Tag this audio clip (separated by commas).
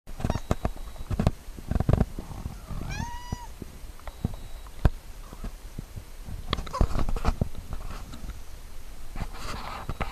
Cat, Domestic animals, Animal